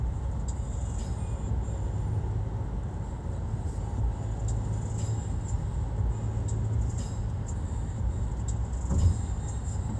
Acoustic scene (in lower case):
car